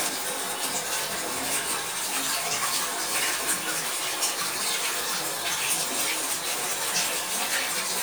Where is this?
in a restroom